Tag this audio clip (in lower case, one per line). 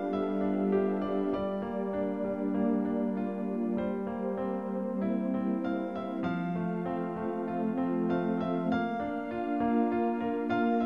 music